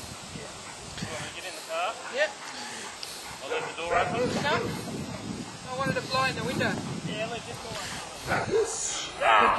Background conversation between man and woman